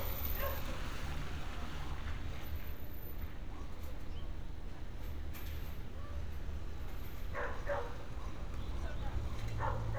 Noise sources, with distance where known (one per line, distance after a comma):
non-machinery impact, near
person or small group talking, far
dog barking or whining